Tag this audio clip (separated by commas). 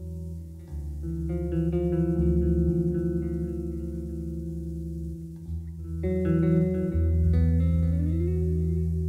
Plucked string instrument, Guitar, Bass guitar, playing bass guitar, Musical instrument, Music